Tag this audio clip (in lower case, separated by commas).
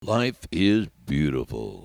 human voice